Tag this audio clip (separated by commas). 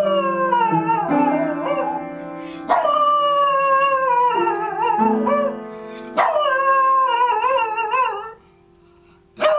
Music, pets, Dog, Animal